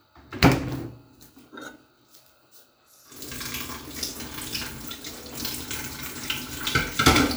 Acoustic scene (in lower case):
kitchen